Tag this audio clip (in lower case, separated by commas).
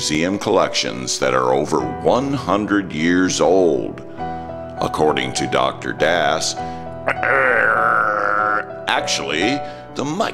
music, speech